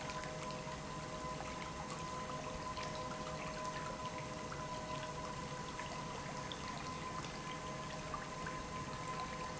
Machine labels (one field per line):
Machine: pump